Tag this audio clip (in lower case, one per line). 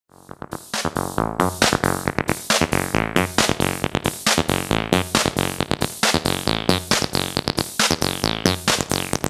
drum machine
musical instrument